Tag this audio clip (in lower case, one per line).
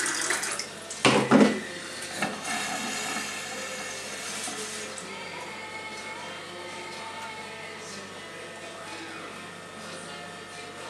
dishes, pots and pans